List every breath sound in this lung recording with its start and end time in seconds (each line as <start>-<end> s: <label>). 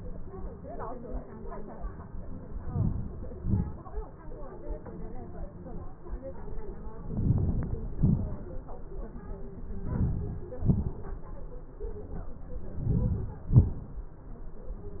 2.67-3.15 s: inhalation
3.34-3.78 s: exhalation
7.08-7.76 s: inhalation
8.01-8.48 s: exhalation
9.96-10.44 s: inhalation
10.67-11.14 s: exhalation
12.87-13.37 s: inhalation
13.64-14.03 s: exhalation